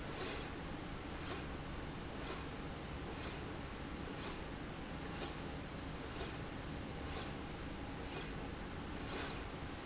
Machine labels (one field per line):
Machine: slide rail